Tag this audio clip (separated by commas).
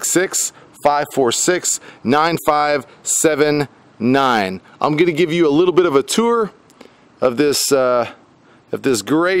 Speech